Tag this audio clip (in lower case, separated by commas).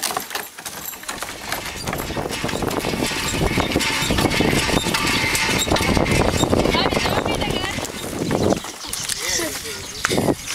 speech